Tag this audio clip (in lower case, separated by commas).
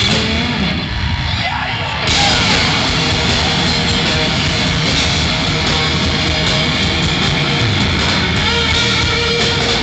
music, blues, rhythm and blues